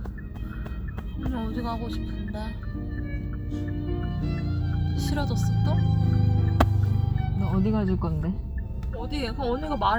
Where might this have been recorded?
in a car